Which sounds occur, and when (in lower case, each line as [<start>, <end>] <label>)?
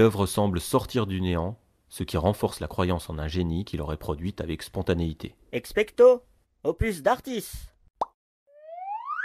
[0.00, 1.51] man speaking
[0.00, 7.72] conversation
[0.00, 7.83] background noise
[1.84, 5.30] man speaking
[5.47, 6.17] man speaking
[6.62, 7.71] man speaking
[7.94, 8.12] plop
[8.44, 9.24] sound effect